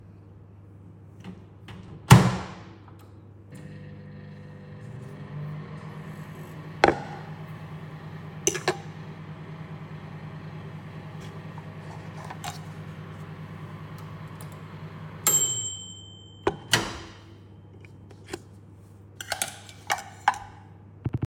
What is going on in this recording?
I put a bowl down on a table and a fork in the bowl. I turn on the microwave and wait until it's done. I then begin putting food in the bowl.